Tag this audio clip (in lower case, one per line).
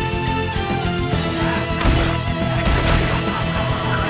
music